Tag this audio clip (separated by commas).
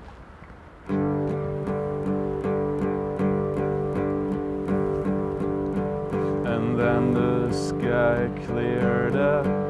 Music